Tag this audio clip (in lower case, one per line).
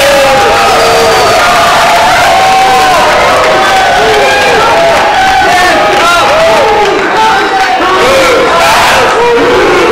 cheering
crowd
battle cry